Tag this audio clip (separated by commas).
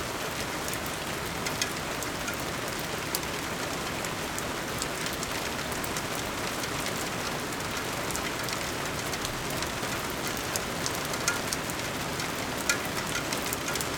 Water, Rain